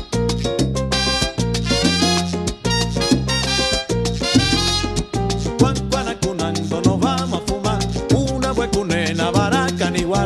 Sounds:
music of latin america, salsa music, music

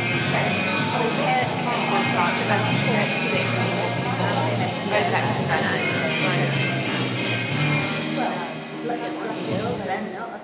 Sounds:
music, speech

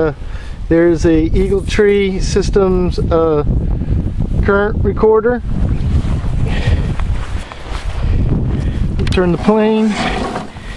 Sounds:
speech

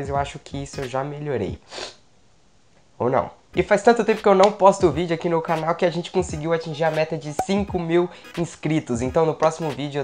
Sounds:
striking pool

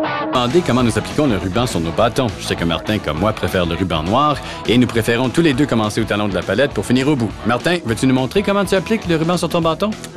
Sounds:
music, speech

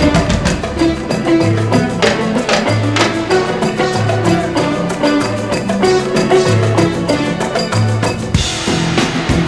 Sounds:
music, rock music

